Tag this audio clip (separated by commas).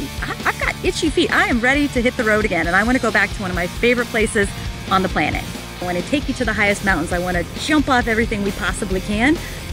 Music, Speech